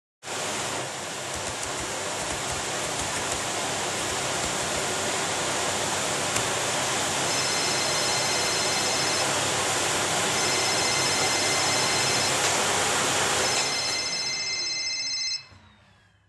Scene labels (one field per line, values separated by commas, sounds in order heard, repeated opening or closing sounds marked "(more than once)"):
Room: living room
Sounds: vacuum cleaner, keyboard typing, phone ringing